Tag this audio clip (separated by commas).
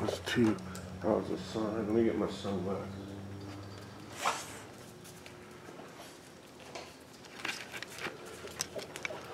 Speech